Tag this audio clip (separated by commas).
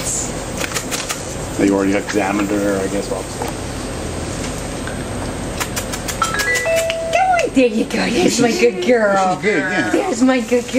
Speech